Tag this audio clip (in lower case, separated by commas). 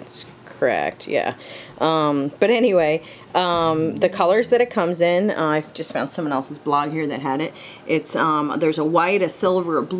speech